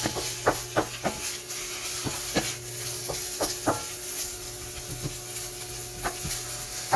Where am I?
in a kitchen